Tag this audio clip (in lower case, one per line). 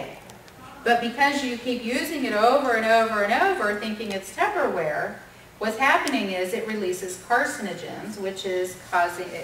speech
woman speaking